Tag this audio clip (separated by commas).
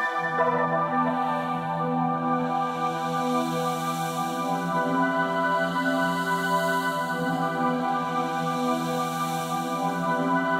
Ambient music, Music